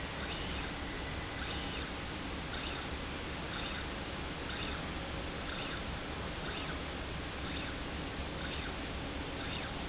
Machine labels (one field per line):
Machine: slide rail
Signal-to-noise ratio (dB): -6 dB